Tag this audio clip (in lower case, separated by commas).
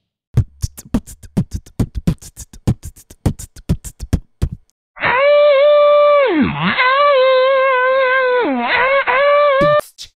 horse, beatboxing, animal